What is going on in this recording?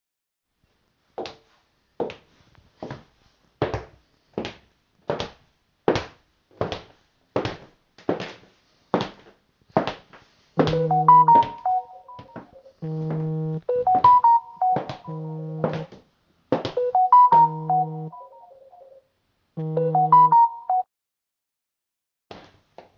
I walked around the room while my phone was ringing. The notification was also heard from my laptop.